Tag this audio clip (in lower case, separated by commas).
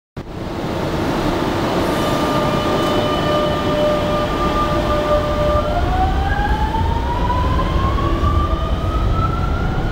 rail transport, vehicle, underground, train